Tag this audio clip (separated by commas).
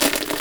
Crushing